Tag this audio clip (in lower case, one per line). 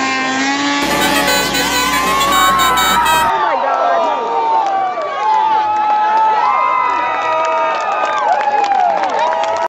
music
speech